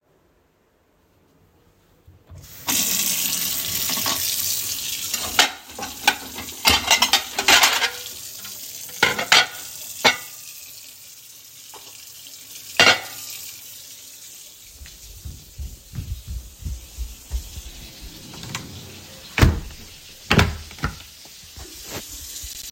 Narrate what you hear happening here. I started running water at the kitchen sink and cleaned the dishes. Then I walked to the bedroom. I opened the wardrobe and looked inside.